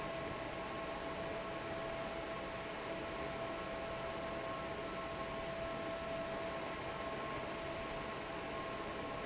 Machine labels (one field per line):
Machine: fan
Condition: normal